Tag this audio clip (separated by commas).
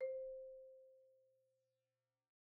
Mallet percussion, Music, Marimba, Percussion, Musical instrument